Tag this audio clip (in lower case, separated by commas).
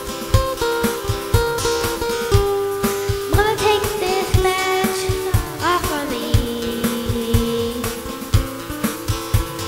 music